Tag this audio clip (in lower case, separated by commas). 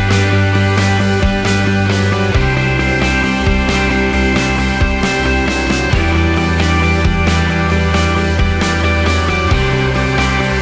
music